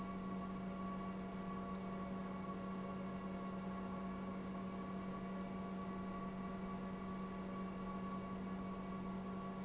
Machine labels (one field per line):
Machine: pump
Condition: normal